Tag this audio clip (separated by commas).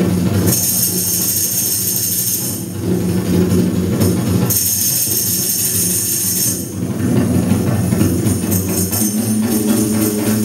Percussion, Music